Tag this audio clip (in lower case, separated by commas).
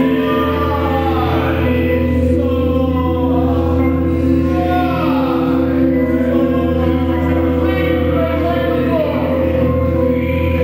music